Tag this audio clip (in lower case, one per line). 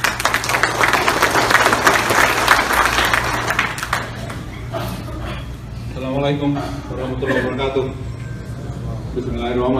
male speech
speech